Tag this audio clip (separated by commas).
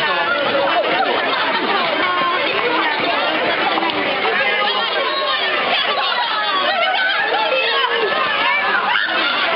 Speech